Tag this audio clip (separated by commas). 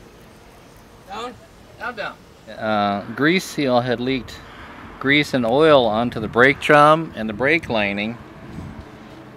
Speech